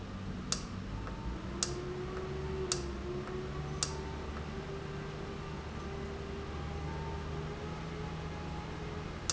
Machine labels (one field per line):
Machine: valve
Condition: normal